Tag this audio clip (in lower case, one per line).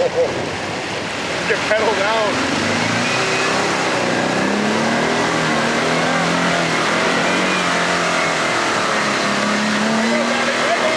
vehicle
speech